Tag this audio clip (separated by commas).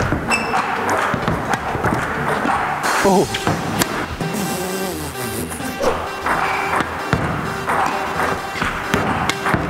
playing table tennis